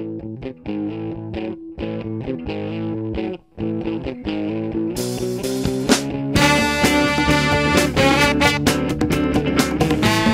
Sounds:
Music, Effects unit

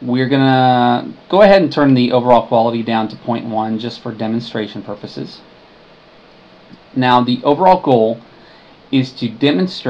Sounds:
Speech

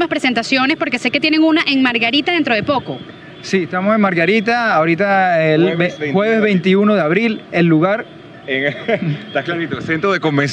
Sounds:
Speech

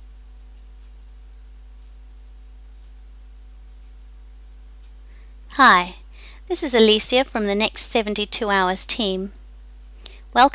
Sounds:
inside a small room, Speech

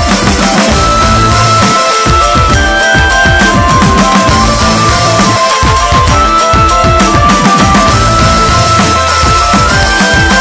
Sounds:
Music

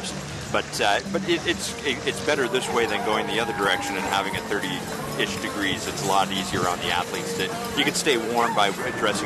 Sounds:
Speech, outside, urban or man-made, Music

